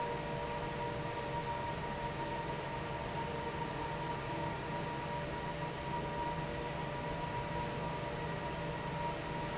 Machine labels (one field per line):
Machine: fan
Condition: normal